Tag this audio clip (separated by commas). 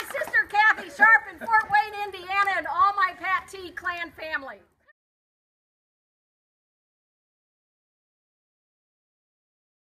Speech